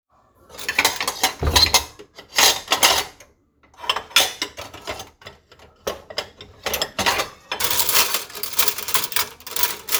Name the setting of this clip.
kitchen